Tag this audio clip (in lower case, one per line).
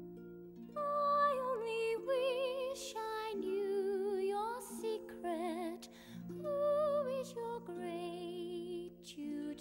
opera
music